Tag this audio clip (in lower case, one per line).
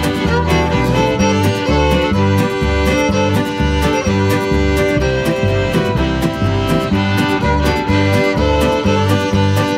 music
country